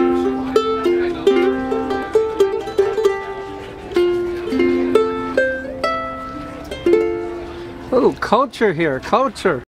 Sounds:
Music, Speech

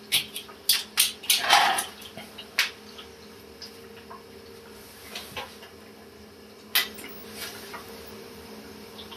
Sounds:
inside a small room

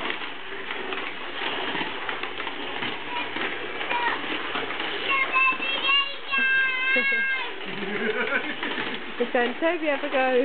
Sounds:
Speech

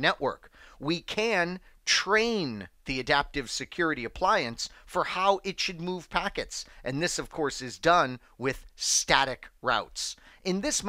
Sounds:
Speech

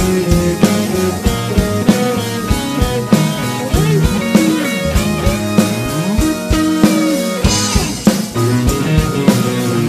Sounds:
Music, Rock music

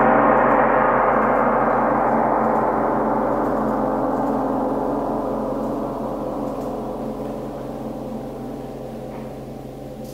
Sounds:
playing gong

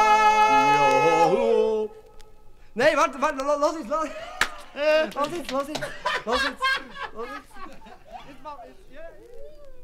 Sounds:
yodelling

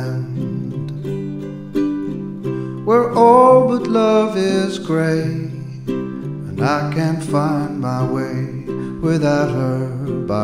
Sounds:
Musical instrument, Music

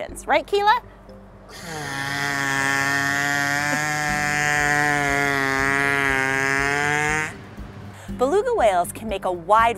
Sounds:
whale calling

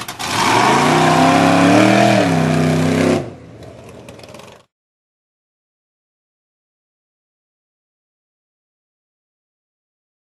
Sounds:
Vehicle

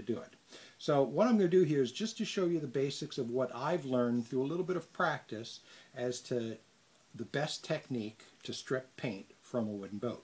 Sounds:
Speech

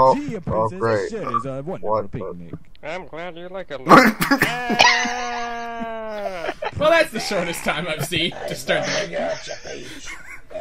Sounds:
outside, rural or natural, Speech

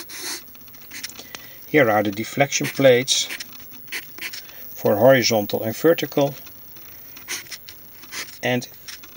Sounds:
Speech, inside a small room

